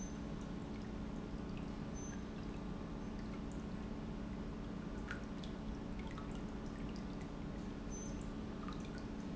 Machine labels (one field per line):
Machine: pump